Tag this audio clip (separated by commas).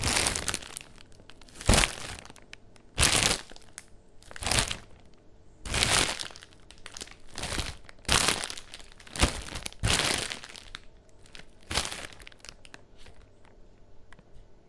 crinkling